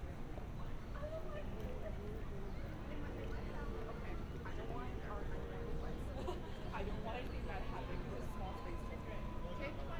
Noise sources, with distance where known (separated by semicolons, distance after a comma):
background noise